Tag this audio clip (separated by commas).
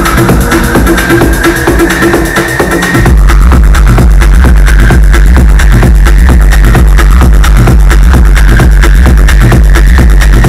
Music, Electronic music